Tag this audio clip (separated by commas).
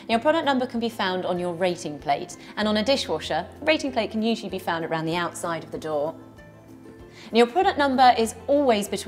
Music, Speech